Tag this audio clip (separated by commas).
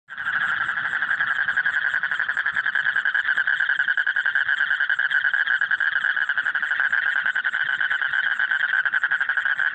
frog croaking